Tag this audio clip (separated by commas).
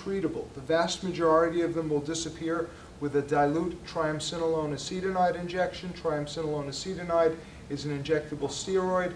Speech